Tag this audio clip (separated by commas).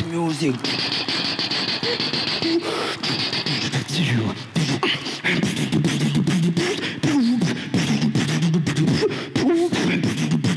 beat boxing